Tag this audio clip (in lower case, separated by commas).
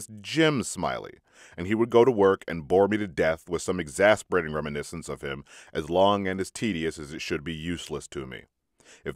speech